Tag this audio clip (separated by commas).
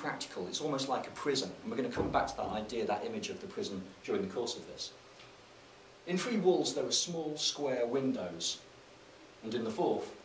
Speech